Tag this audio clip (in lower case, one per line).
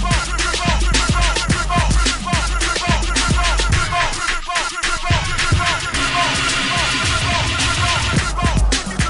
music